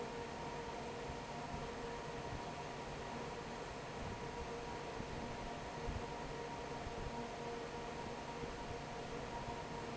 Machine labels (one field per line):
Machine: fan